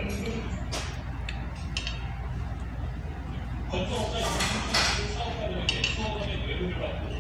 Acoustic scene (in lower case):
restaurant